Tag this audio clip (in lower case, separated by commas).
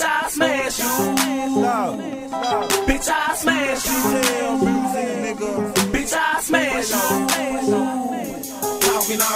music